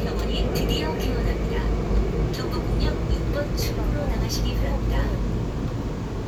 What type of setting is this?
subway train